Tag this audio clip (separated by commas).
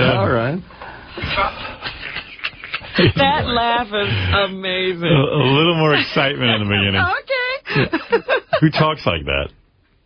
Speech